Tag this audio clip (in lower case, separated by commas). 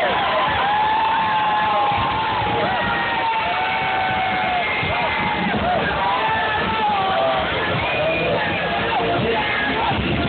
music, people cheering, cheering